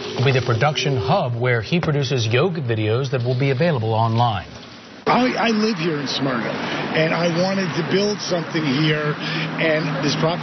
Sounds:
speech

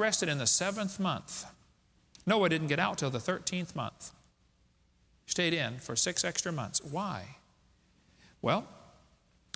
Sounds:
speech

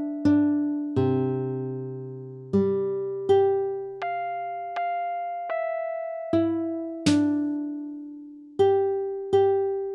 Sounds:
music

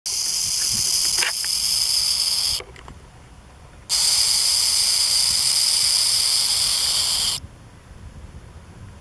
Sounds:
snake rattling

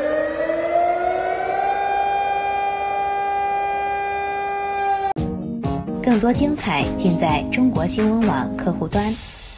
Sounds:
civil defense siren

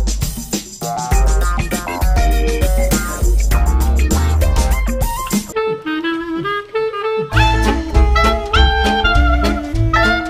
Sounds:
brass instrument

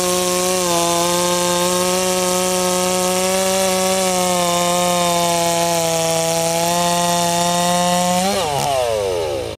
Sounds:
chainsawing trees
chainsaw

